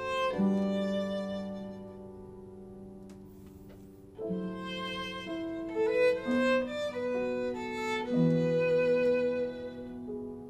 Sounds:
Music, Musical instrument, Violin

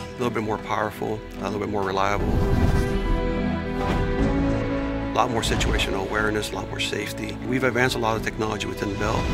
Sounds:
Music, Speech

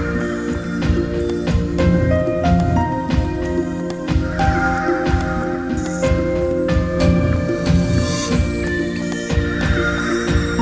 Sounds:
Music, Background music

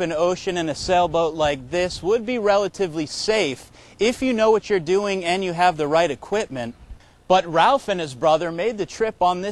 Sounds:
Speech

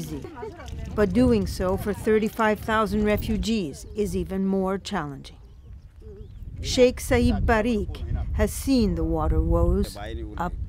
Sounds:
Speech

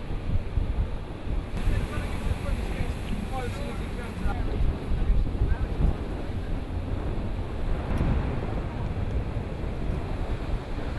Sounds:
Vehicle, Water vehicle, sailing ship, Speech

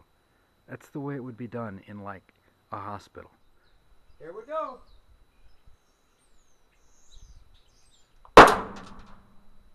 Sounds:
Clang

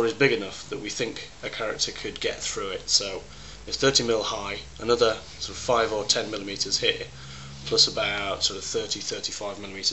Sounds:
Speech

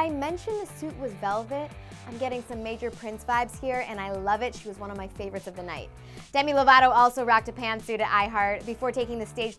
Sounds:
Speech, Music

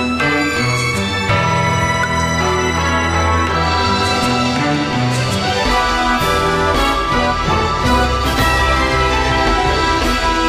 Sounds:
Music

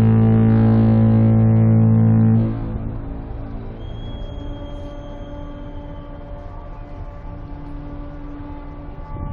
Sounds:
foghorn

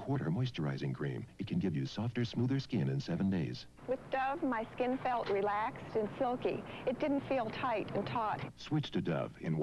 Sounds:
Speech

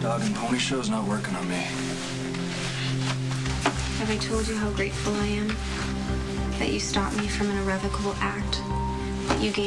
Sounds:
Music, Speech

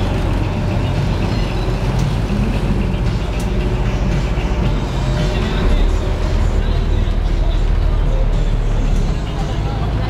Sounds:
Boat, speedboat

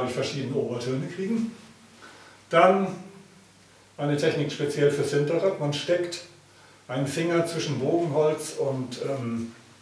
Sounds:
Speech

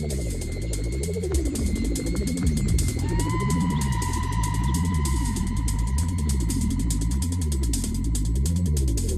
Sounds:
Music, inside a large room or hall

